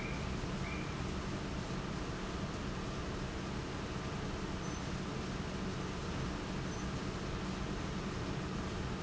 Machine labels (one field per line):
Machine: fan